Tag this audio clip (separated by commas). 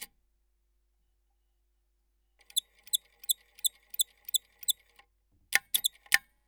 Mechanisms